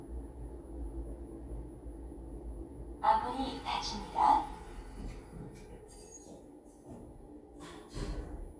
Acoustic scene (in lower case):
elevator